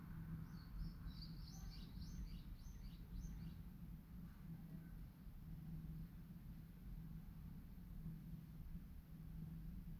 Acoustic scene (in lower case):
residential area